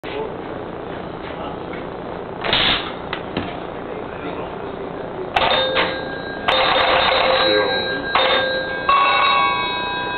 Vibrations, multiple rings of a phone, people speak